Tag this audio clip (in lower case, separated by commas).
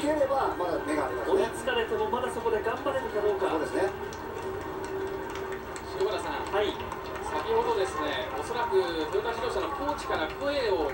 television, run